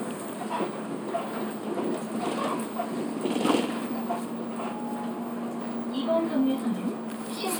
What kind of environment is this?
bus